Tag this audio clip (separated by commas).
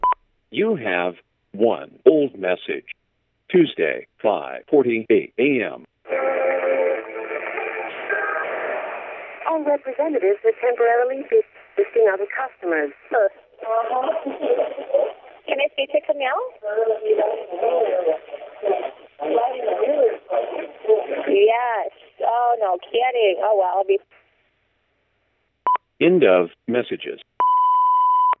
Telephone, Alarm